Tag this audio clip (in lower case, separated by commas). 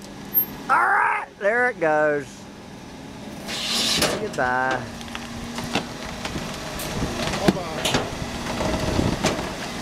truck, speech, vehicle